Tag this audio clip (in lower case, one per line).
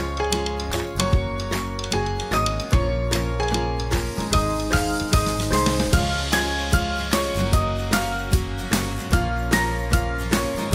music